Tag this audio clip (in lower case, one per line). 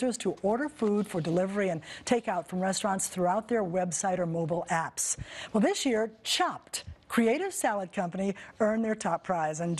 speech